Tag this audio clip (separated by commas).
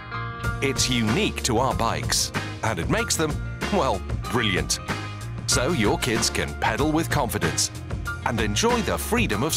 Speech, Music